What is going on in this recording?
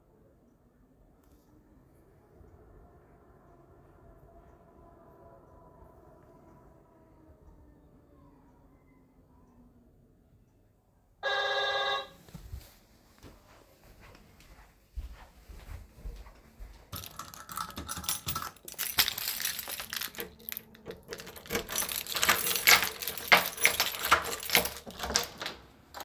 My door bell rang, so i walked to the door, took my keys, unlocked the door and opened it.